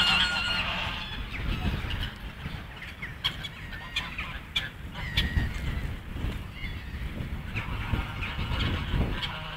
Large group of birds quacking